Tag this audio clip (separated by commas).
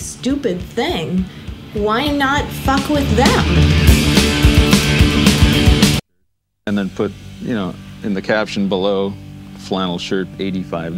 Music, Speech